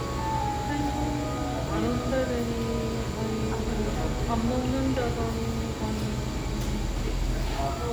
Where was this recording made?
in a cafe